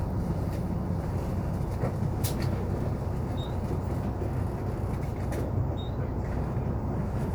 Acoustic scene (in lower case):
bus